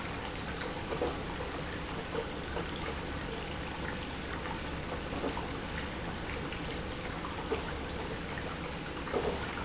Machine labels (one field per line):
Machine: pump